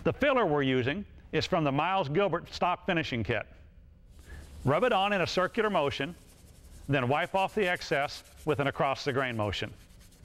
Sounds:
speech

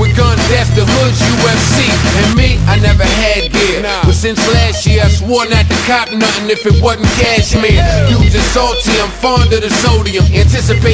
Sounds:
music

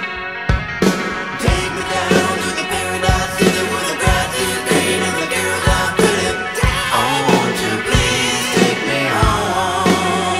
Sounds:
music, independent music

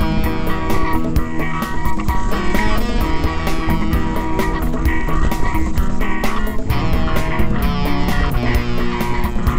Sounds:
motorcycle

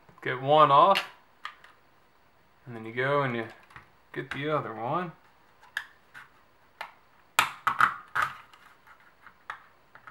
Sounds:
speech, inside a small room

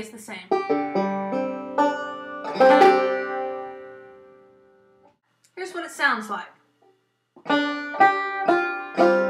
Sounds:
music, speech

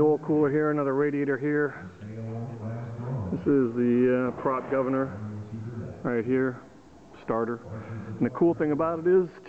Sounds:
speech

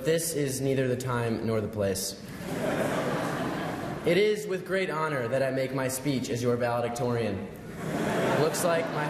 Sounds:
man speaking, narration, speech

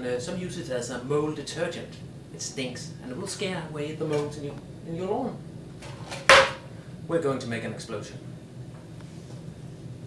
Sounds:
speech

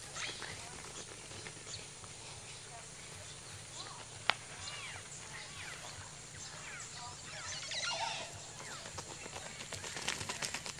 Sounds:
turkey gobbling

